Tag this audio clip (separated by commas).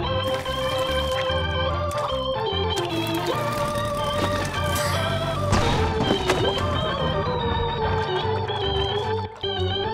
Music